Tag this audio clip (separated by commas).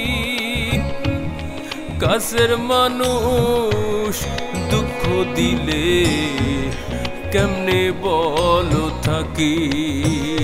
people humming